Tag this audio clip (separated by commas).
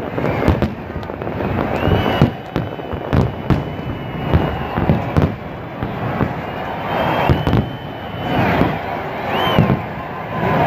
Fireworks